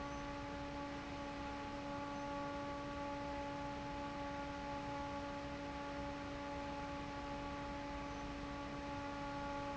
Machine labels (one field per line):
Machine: fan